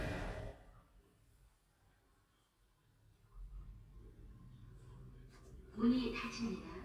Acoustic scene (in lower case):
elevator